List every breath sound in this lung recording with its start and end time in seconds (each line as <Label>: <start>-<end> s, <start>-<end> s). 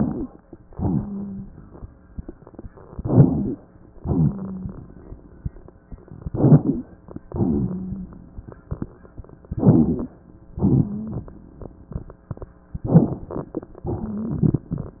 Inhalation: 2.92-3.57 s, 6.20-6.87 s, 9.56-10.23 s, 12.88-13.45 s
Exhalation: 0.70-1.44 s, 4.02-4.78 s, 7.30-8.16 s, 10.64-11.21 s, 13.93-14.59 s
Wheeze: 0.70-1.44 s, 4.02-4.78 s, 7.30-8.16 s, 10.64-11.21 s, 13.93-14.59 s
Rhonchi: 0.00-0.32 s, 2.92-3.57 s, 6.20-6.87 s, 9.56-10.23 s, 12.88-13.45 s